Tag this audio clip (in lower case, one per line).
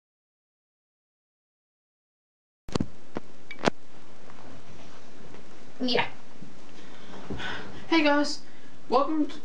speech